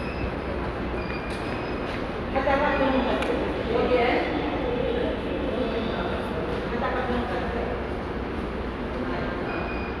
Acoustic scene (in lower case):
subway station